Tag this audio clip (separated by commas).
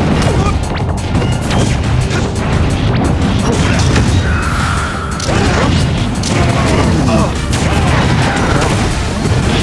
Music